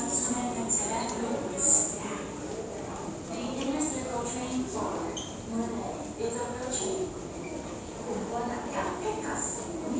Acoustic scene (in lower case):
subway station